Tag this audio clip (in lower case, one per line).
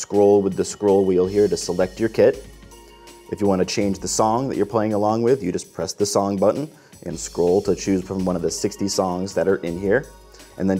music
speech